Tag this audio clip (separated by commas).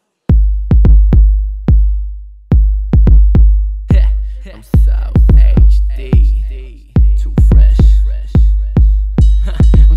Music